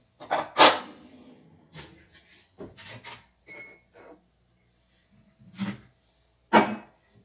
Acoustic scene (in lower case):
kitchen